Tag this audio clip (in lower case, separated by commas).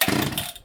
mechanisms